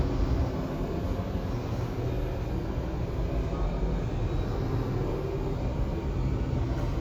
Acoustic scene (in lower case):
subway station